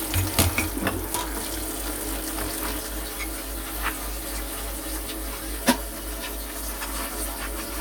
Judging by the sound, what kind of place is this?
kitchen